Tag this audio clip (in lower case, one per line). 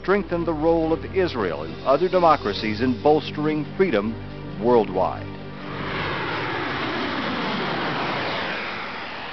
speech
music